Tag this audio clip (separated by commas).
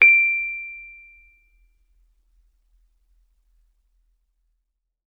Piano, Musical instrument, Music, Keyboard (musical)